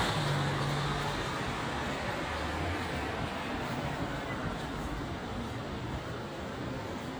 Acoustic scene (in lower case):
street